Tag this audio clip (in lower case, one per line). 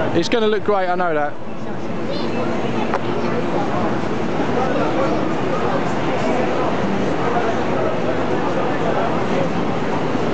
speech